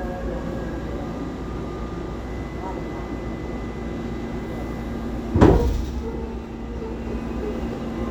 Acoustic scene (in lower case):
subway train